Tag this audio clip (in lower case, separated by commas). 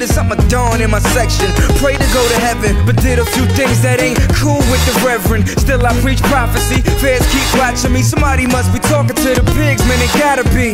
music, pop music